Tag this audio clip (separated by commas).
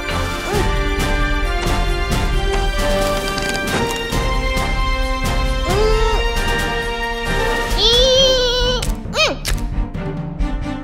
Music